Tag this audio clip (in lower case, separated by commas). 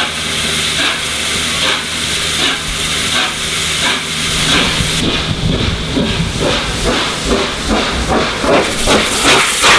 steam, outside, urban or man-made, vehicle, train, hiss, rail transport